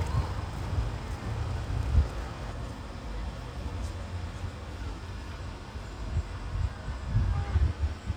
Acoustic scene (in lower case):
residential area